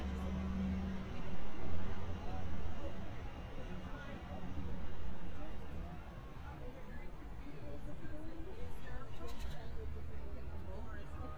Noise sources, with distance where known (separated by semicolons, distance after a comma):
background noise